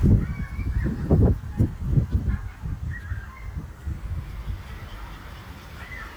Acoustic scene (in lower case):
residential area